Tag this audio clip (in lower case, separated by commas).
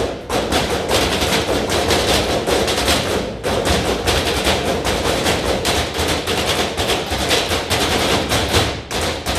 wood block, music, percussion